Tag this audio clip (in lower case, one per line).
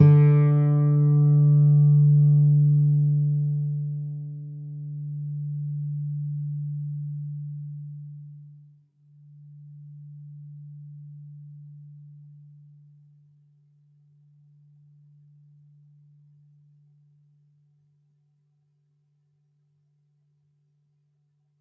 plucked string instrument
musical instrument
music
guitar